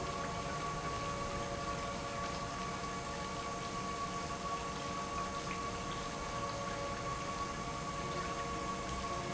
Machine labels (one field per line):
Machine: pump